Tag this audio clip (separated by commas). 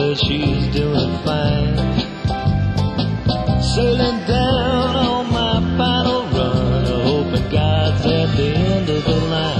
Music, Country